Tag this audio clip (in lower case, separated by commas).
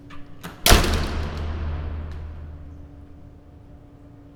door, domestic sounds, slam